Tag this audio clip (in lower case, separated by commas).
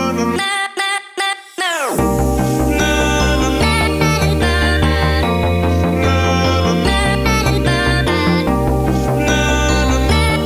music